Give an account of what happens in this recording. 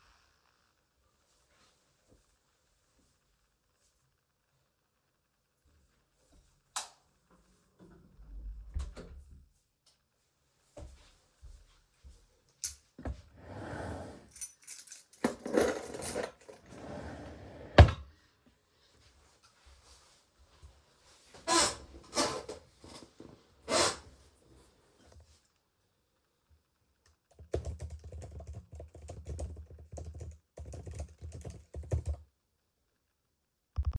I turned on the light and went to my desk. I opened my drawer and put my keys in it. Then I closed the drawer, sat down in my chair, and logged into my laptop.